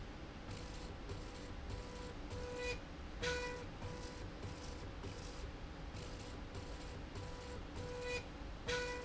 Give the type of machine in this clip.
slide rail